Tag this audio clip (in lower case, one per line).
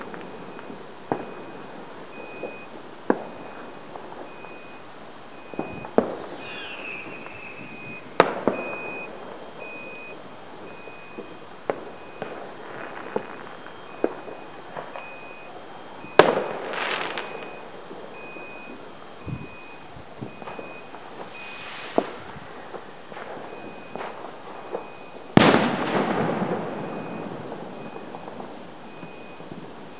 explosion
fireworks